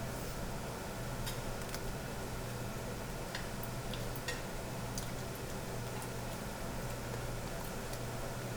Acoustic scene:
restaurant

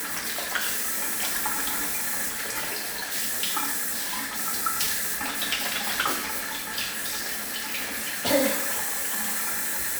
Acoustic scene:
restroom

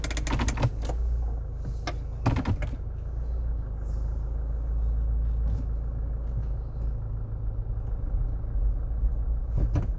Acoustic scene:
car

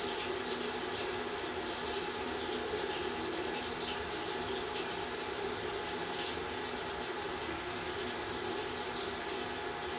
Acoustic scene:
restroom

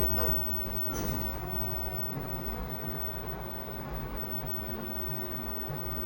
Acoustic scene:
elevator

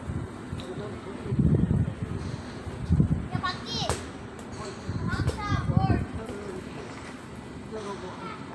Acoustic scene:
park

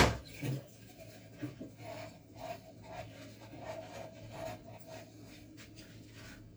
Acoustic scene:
kitchen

